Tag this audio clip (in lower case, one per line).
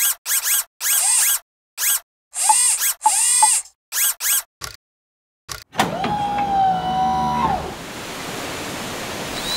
sound effect